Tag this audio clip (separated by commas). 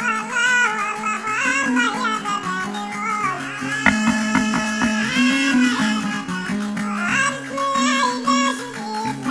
Music